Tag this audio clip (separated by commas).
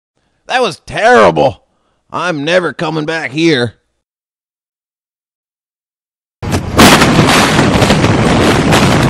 Boom, Speech